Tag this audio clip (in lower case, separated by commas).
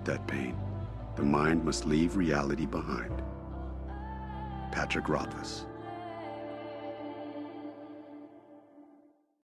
speech, music